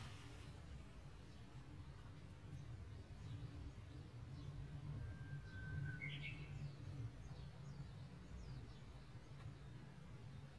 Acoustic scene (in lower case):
park